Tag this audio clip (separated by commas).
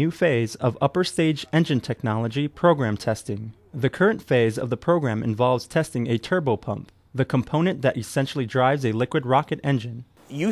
Speech